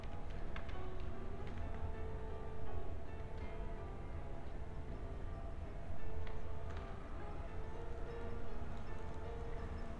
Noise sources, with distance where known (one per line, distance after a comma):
music from a fixed source